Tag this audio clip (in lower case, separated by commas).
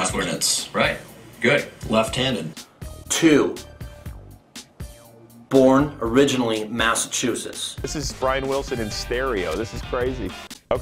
music, speech